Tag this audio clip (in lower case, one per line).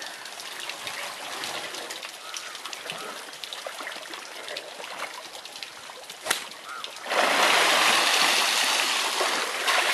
water
pour